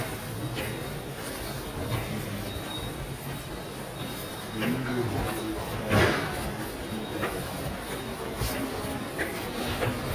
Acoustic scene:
subway station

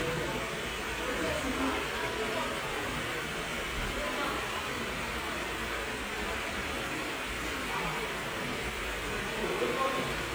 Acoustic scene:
park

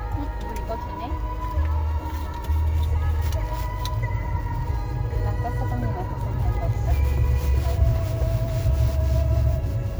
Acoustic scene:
car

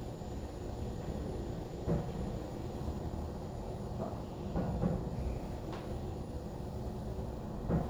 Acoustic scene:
elevator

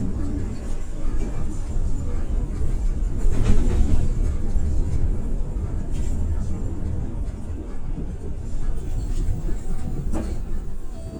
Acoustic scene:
bus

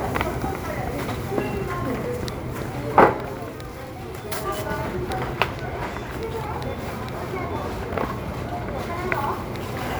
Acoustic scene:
crowded indoor space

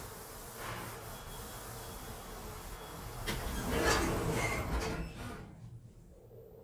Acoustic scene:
elevator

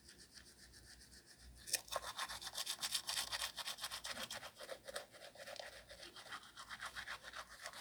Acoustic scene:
restroom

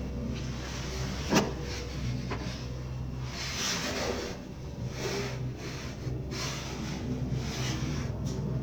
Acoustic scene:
elevator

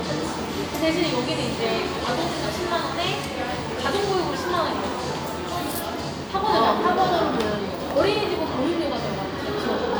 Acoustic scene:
cafe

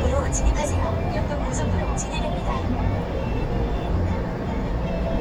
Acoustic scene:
car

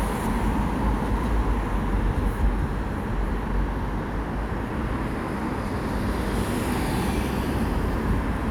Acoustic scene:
street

